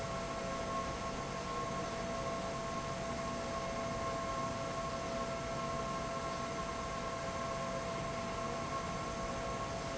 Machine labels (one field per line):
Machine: fan